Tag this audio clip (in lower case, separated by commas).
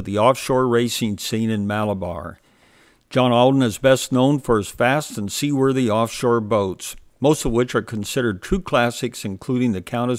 speech